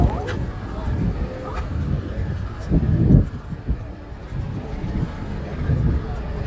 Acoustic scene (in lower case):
street